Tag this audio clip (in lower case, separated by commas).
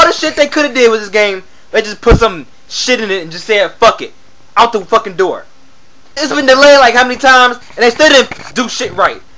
speech